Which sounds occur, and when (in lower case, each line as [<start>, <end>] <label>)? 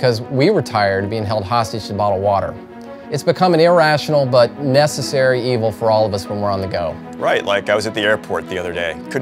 [0.01, 2.46] man speaking
[0.01, 9.21] background noise
[3.04, 6.93] man speaking
[7.21, 8.96] man speaking
[9.09, 9.21] man speaking